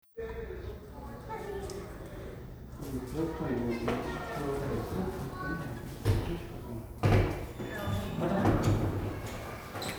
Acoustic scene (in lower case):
elevator